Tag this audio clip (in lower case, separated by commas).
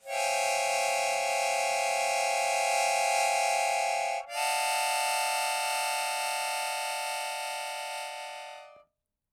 harmonica, musical instrument, music